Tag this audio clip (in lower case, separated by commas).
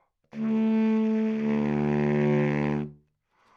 musical instrument, music, wind instrument